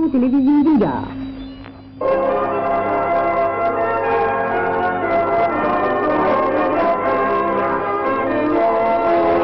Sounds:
music, speech, radio

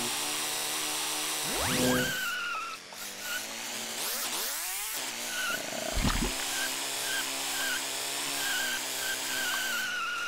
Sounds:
car

